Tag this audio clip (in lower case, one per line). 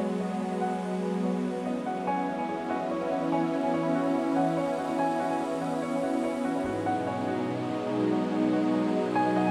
new-age music